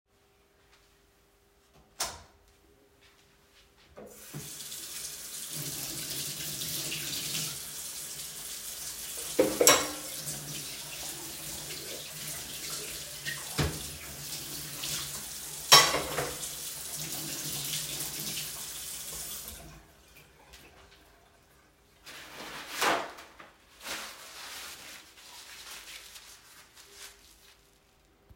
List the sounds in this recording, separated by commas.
light switch, running water, cutlery and dishes